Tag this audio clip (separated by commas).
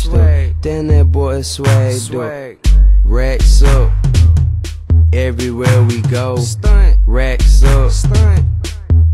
Music